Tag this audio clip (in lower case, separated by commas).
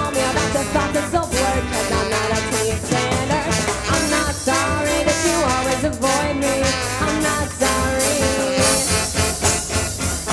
trombone, trumpet, brass instrument